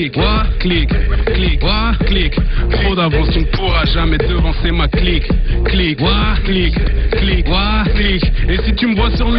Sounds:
Radio, Music

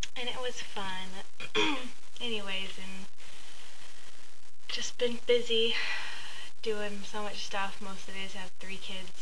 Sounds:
Speech

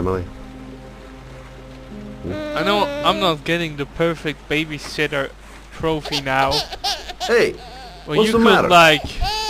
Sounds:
Music, Rain on surface, Speech

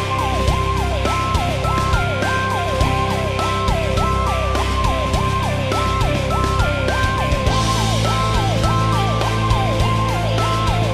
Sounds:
Music

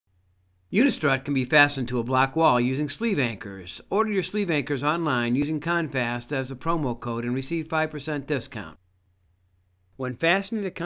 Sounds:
Speech

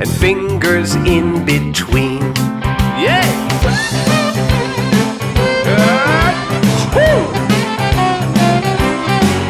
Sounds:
Music for children, Singing

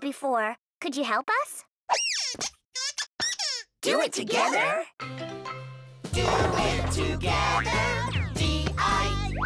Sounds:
Music, Speech, Music for children, Child speech

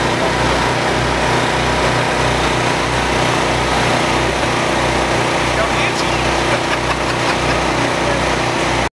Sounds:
Vehicle, Speech

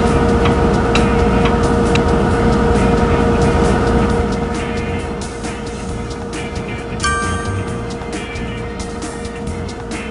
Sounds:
Music

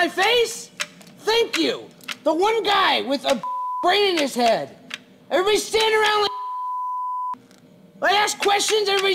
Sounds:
Speech

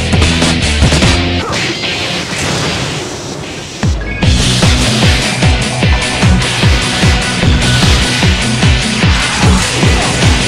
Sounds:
Music

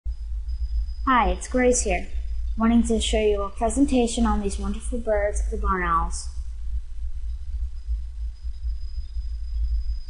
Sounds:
Speech

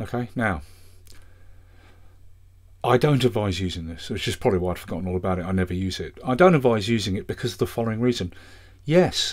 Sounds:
Speech

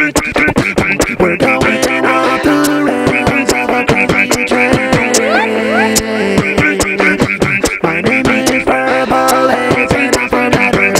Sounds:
Music, Beatboxing

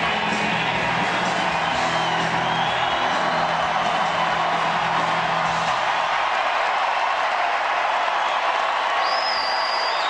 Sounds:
Music

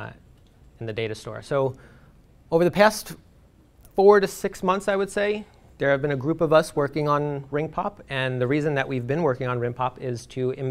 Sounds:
Speech

